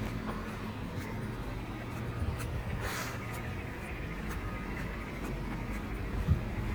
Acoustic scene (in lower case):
residential area